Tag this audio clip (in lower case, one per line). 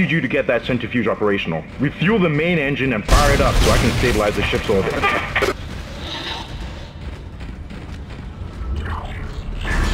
speech